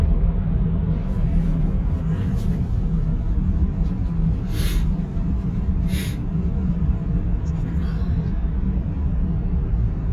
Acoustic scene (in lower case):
car